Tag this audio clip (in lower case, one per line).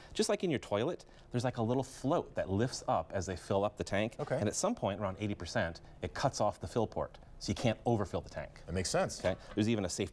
speech